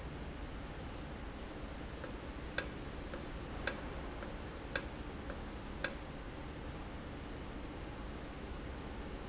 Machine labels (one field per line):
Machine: valve